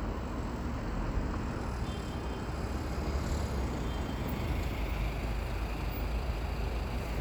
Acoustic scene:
street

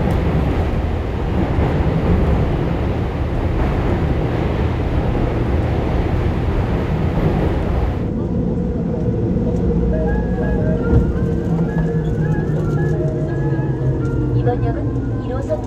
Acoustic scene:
subway train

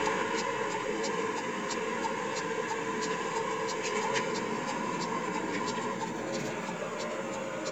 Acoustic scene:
car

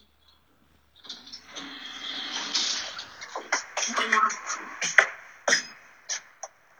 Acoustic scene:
elevator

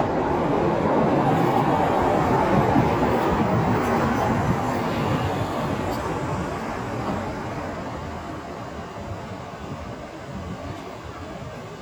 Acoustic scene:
street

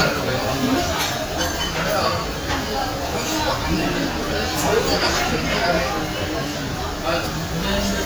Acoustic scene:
crowded indoor space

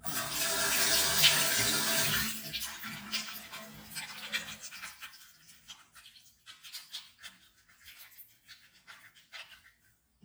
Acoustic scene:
restroom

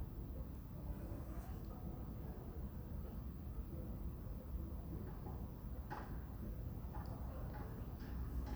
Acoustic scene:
residential area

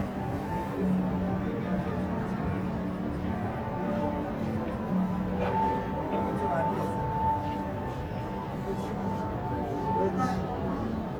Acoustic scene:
crowded indoor space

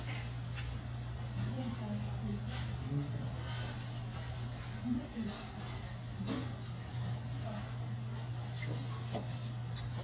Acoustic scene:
restaurant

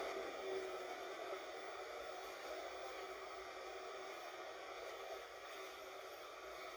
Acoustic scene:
bus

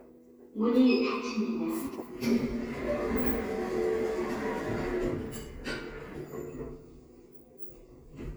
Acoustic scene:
elevator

